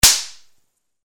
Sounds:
gunshot, explosion

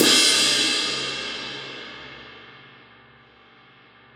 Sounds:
musical instrument, crash cymbal, percussion, cymbal, music

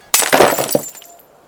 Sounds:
shatter, glass

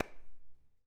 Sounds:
hands, clapping

